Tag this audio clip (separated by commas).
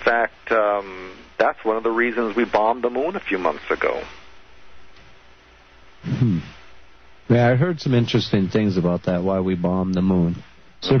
Speech